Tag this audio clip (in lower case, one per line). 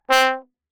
musical instrument
brass instrument
music